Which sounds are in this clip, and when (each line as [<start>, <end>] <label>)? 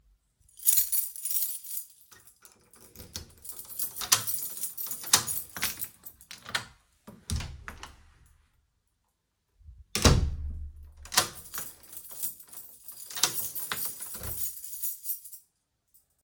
[0.65, 2.17] keys
[3.17, 6.66] door
[3.46, 6.66] keys
[7.08, 8.02] door
[9.89, 14.85] door
[11.14, 15.94] keys